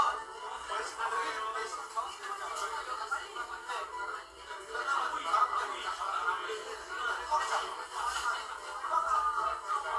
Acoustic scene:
crowded indoor space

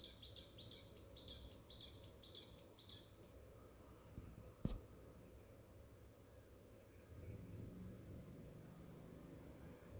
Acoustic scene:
park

